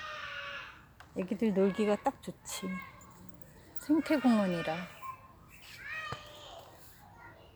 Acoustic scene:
park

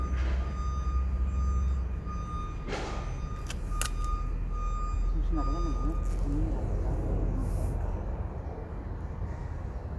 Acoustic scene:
residential area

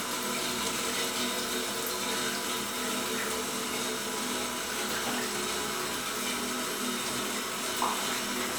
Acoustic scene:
restroom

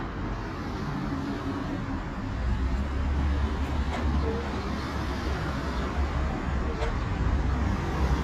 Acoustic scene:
street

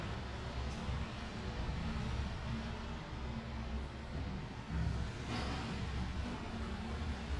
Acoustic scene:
elevator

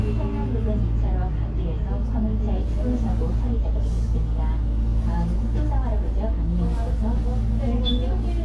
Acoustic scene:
bus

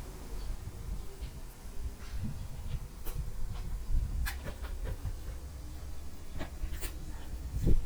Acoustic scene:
park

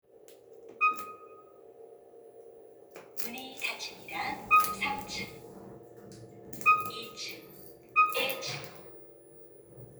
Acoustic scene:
elevator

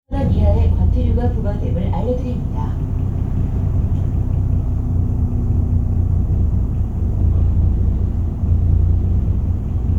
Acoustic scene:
bus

